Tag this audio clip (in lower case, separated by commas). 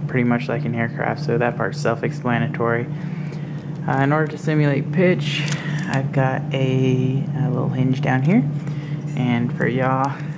speech